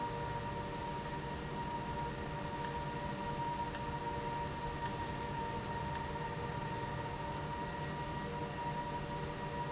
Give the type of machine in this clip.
valve